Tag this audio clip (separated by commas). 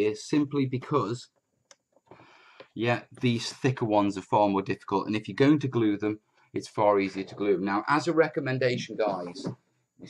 Speech